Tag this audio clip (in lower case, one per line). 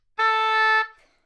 music
musical instrument
woodwind instrument